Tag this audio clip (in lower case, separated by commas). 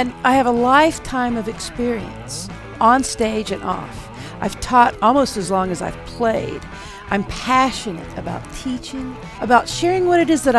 speech, musical instrument, music, plucked string instrument, guitar